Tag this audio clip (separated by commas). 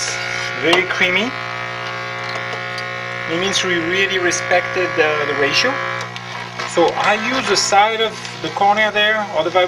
Speech